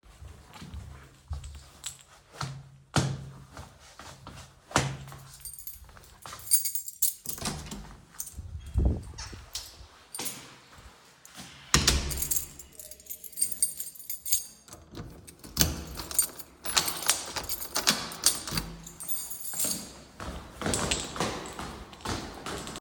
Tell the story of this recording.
I slipped on my shoes, grabbed my keys, left my apartment and locked the door.